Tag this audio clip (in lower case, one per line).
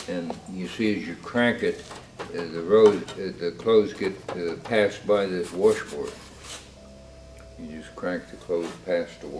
speech